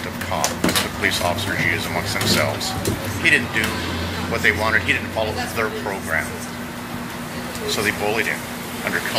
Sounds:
Speech

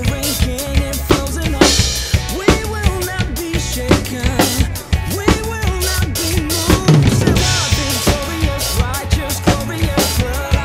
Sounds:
Pop music, Music

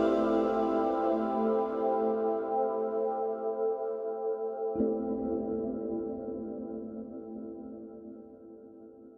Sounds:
Ambient music

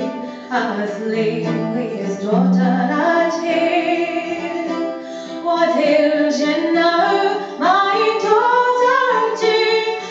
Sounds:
Music, Traditional music

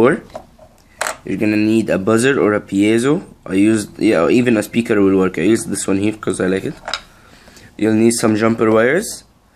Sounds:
Speech, inside a small room

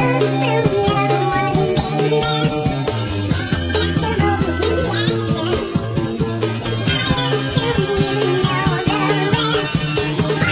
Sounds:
Music

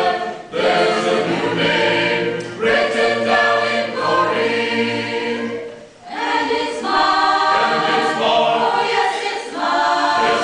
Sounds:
Singing, Choir, Gospel music

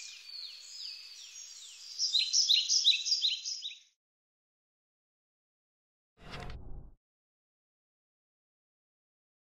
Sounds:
Insect

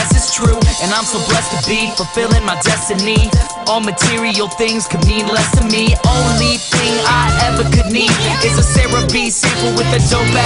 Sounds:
Music, Electronic music, Dubstep

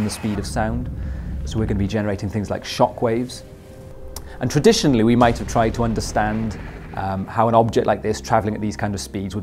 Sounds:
Speech

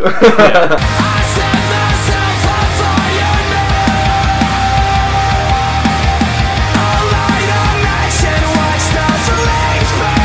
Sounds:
Music

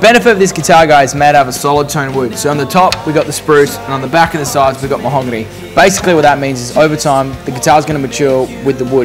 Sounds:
Speech

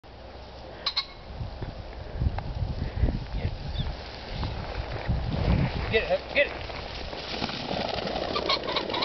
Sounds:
Speech, outside, rural or natural, Bird

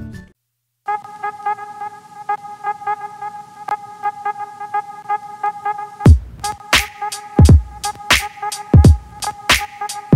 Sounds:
Music, Background music

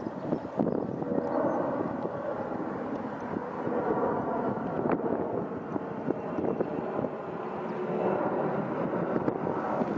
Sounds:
Fixed-wing aircraft, Vehicle, Aircraft, Wind noise (microphone)

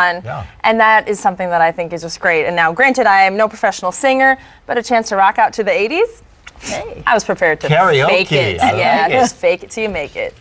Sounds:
Speech

